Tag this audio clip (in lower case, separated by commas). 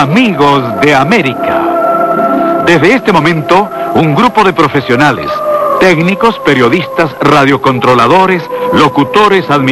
music, speech, radio